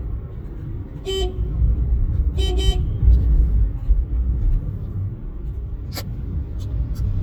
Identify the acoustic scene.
car